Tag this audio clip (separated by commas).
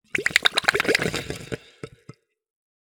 Gurgling, Water